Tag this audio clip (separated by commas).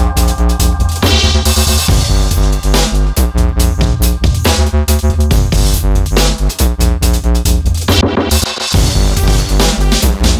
Music